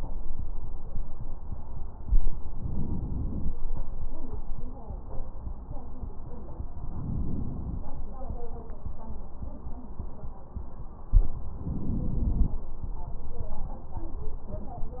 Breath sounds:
Inhalation: 2.48-3.53 s, 6.80-7.85 s, 11.62-12.67 s

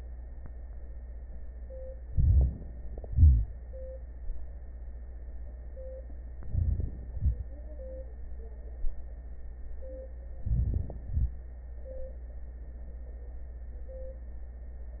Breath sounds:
Inhalation: 2.06-2.56 s, 6.42-6.94 s, 10.44-10.96 s
Exhalation: 3.08-3.50 s, 7.13-7.45 s, 11.11-11.36 s
Wheeze: 3.08-3.50 s
Crackles: 2.06-2.56 s, 6.42-6.94 s, 10.44-10.95 s

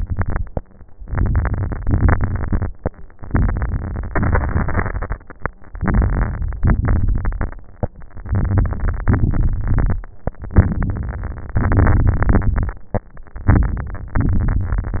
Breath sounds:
Inhalation: 1.04-1.78 s, 3.17-4.08 s, 5.74-6.59 s, 8.15-9.08 s, 10.55-11.59 s, 13.44-14.21 s
Exhalation: 0.00-0.60 s, 1.80-2.71 s, 4.08-5.20 s, 6.61-7.66 s, 9.08-10.03 s, 11.57-12.81 s, 14.21-14.99 s
Crackles: 0.00-0.60 s, 1.04-1.78 s, 1.80-2.71 s, 3.17-4.08 s, 4.08-5.20 s, 5.74-6.59 s, 6.61-7.66 s, 8.15-9.08 s, 9.08-10.03 s, 10.57-11.59 s, 11.63-12.82 s, 13.44-14.21 s, 14.21-14.99 s

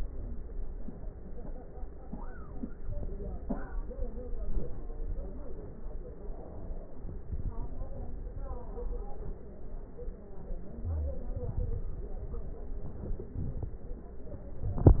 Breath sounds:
No breath sounds were labelled in this clip.

